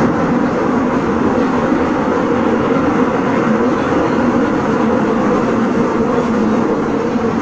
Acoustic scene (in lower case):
subway train